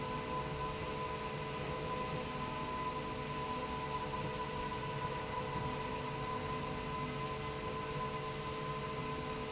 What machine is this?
slide rail